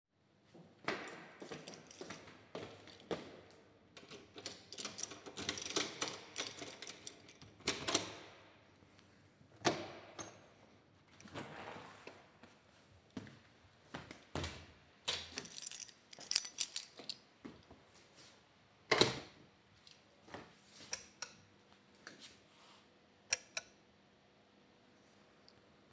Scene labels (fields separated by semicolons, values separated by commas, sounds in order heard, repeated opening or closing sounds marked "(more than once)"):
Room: hallway; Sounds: footsteps, keys, door (more than once), light switch